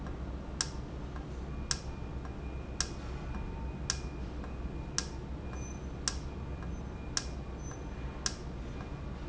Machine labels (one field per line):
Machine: valve